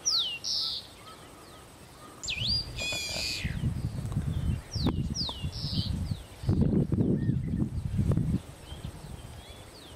Birds chirping and singing with wind noise